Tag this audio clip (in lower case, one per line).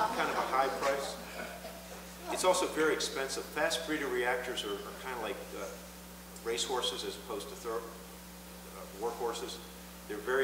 speech